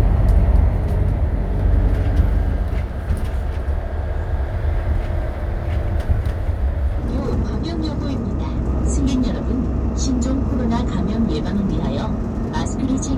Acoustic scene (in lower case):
bus